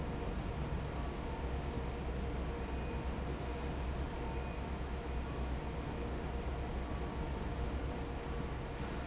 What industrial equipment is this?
fan